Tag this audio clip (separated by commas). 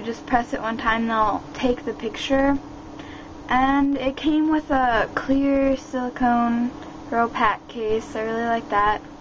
Speech